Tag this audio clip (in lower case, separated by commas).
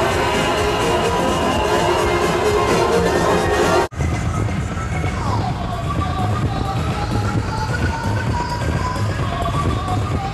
music, techno